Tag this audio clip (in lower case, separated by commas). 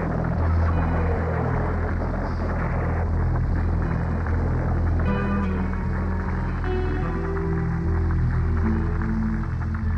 music